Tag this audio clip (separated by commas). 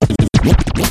Musical instrument, Scratching (performance technique), Music